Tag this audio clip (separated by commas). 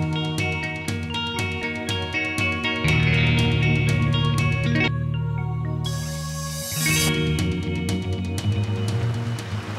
Music